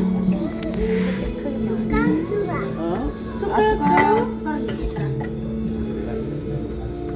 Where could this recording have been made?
in a crowded indoor space